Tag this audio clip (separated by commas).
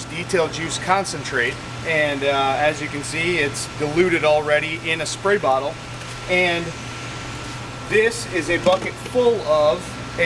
Vehicle, Car, Speech